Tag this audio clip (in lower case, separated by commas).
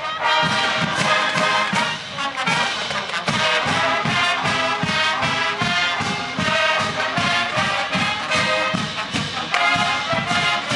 music, outside, urban or man-made